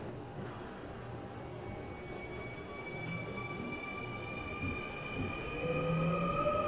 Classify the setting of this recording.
subway train